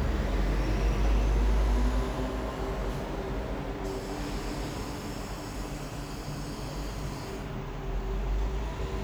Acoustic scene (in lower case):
street